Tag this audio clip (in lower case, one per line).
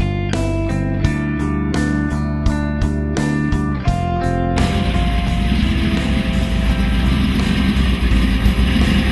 car
music
vehicle